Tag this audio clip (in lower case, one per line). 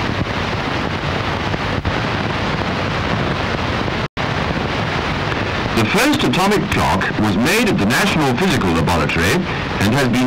speech